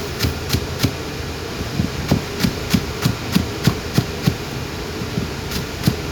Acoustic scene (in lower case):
kitchen